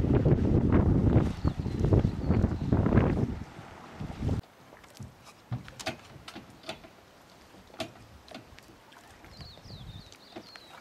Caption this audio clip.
Wind is blowing hard water splashes lightly and birds chirp